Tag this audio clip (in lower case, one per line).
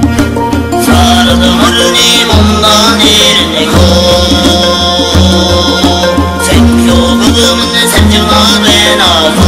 folk music
music